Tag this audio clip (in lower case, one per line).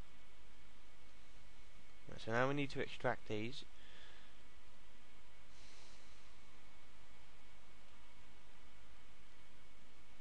speech